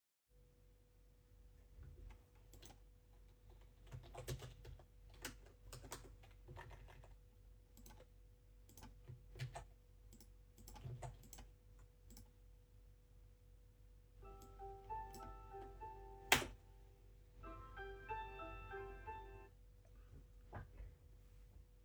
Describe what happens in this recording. I type on my PC. When an alarm rings I stop to turn it off.